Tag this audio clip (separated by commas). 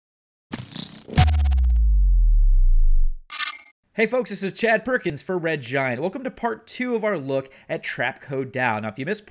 Speech